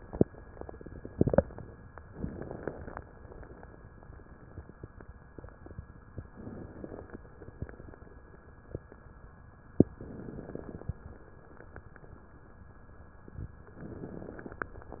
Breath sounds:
2.09-3.04 s: inhalation
2.09-3.04 s: crackles
6.28-7.23 s: inhalation
6.28-7.23 s: crackles
9.98-10.99 s: inhalation
9.98-10.99 s: crackles
13.76-14.76 s: inhalation
13.76-14.76 s: crackles

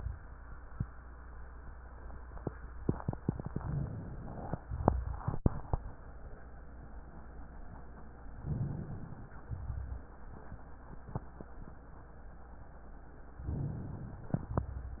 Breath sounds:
8.37-9.37 s: inhalation
9.45-10.20 s: exhalation
13.38-14.34 s: inhalation

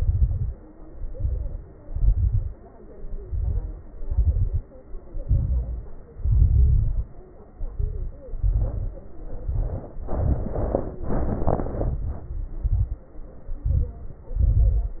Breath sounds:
0.00-0.55 s: exhalation
0.00-0.55 s: crackles
0.76-1.67 s: inhalation
0.76-1.67 s: crackles
1.84-2.58 s: exhalation
1.84-2.58 s: crackles
2.70-3.91 s: inhalation
2.70-3.91 s: crackles
3.91-4.67 s: exhalation
3.91-4.67 s: crackles
5.21-6.12 s: inhalation
5.21-6.12 s: crackles
6.16-7.24 s: exhalation
6.16-7.24 s: crackles
7.54-8.38 s: inhalation
7.54-8.38 s: crackles
8.40-9.16 s: exhalation
8.40-9.16 s: crackles
9.25-10.01 s: inhalation
9.25-10.01 s: crackles
10.03-11.00 s: exhalation
10.03-11.00 s: crackles
11.06-11.78 s: inhalation
11.06-11.78 s: crackles
11.86-12.35 s: exhalation
11.86-12.35 s: crackles
12.58-13.07 s: inhalation
12.58-13.07 s: crackles
13.64-14.25 s: exhalation
13.64-14.25 s: crackles
14.40-15.00 s: inhalation
14.40-15.00 s: crackles

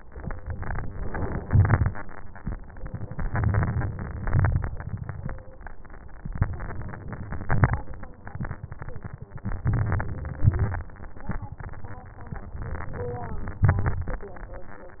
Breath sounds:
0.44-1.45 s: inhalation
1.42-2.00 s: exhalation
1.42-2.00 s: crackles
3.19-4.24 s: crackles
3.21-4.24 s: inhalation
4.25-5.02 s: exhalation
4.26-5.02 s: crackles
6.36-7.41 s: inhalation
7.45-8.19 s: exhalation
7.45-8.19 s: crackles
9.57-10.40 s: inhalation
10.42-11.26 s: exhalation
10.42-11.26 s: crackles
12.65-13.64 s: inhalation
13.63-14.34 s: crackles
13.67-14.34 s: exhalation

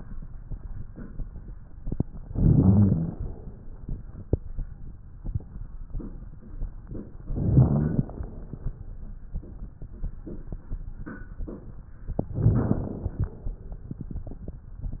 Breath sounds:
2.24-3.15 s: inhalation
2.24-3.15 s: rhonchi
3.21-3.85 s: exhalation
7.19-8.10 s: inhalation
7.19-8.10 s: rhonchi
8.08-8.73 s: exhalation
12.31-13.23 s: inhalation
12.31-13.23 s: rhonchi
13.28-13.93 s: exhalation

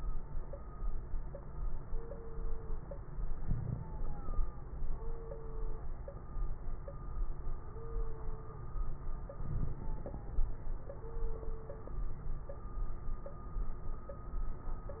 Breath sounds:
3.40-3.88 s: inhalation
3.40-3.88 s: crackles
9.40-9.88 s: inhalation
9.40-9.88 s: crackles

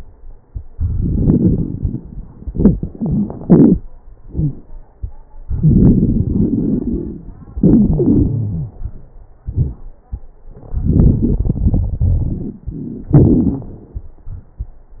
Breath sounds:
0.70-2.06 s: inhalation
0.70-2.06 s: crackles
2.43-3.79 s: exhalation
2.43-3.79 s: crackles
4.21-4.56 s: wheeze
5.47-7.27 s: inhalation
5.47-7.27 s: crackles
7.56-8.82 s: exhalation
7.56-8.82 s: wheeze
10.70-13.12 s: inhalation
10.70-13.12 s: crackles
13.14-13.76 s: exhalation
13.14-13.76 s: crackles

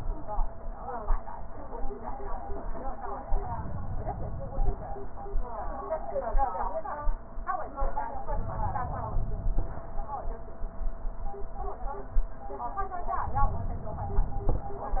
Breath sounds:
3.41-4.98 s: inhalation
8.23-9.80 s: inhalation

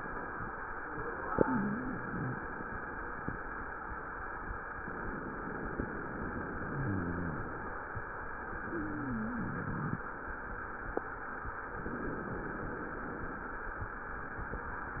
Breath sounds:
1.31-2.37 s: wheeze
1.31-3.13 s: exhalation
4.86-7.80 s: inhalation
6.68-7.51 s: wheeze
8.46-10.02 s: exhalation
8.69-9.94 s: wheeze
11.74-13.51 s: inhalation

